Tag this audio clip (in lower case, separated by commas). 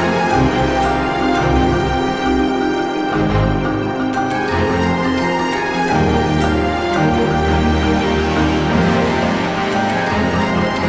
music